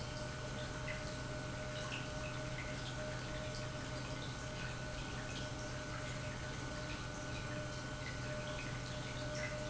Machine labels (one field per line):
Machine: pump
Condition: normal